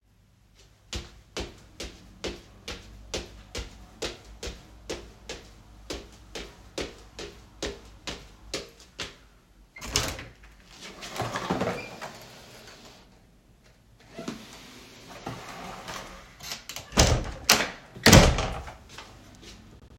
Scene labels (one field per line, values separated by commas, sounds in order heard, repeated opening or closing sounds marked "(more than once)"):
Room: hallway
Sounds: footsteps, door (more than once)